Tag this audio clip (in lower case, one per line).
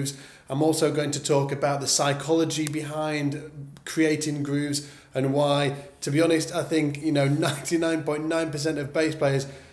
speech